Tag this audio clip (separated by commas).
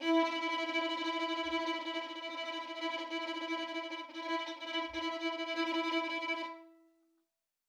Musical instrument, Bowed string instrument, Music